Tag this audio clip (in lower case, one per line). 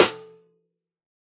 music
musical instrument
drum
snare drum
percussion